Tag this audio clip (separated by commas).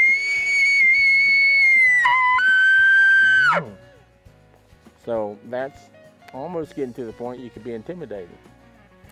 elk bugling